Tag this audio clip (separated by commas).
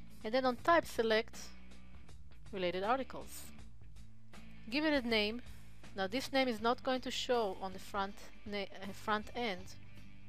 Speech